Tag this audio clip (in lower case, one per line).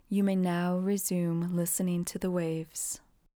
speech
human voice
female speech